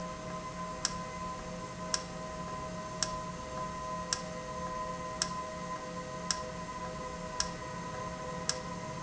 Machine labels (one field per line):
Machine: valve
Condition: normal